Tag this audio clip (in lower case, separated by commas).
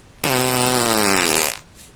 fart